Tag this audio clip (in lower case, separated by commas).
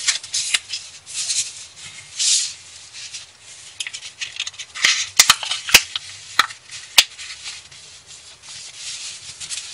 inside a small room